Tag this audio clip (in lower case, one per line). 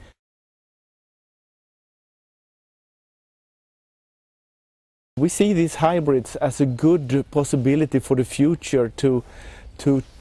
speech